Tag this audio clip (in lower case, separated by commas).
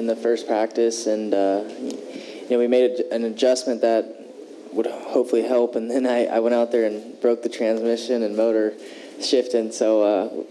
speech